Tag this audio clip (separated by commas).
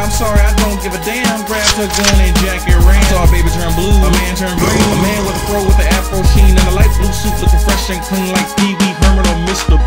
Pop music, Music, Jazz, Rhythm and blues